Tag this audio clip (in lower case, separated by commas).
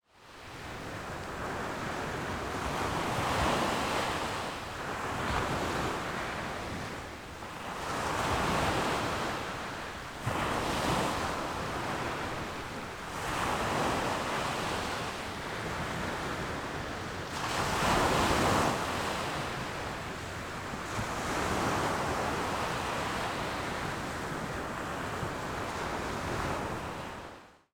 water, ocean, surf